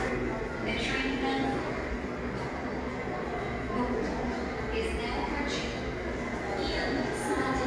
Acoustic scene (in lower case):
subway station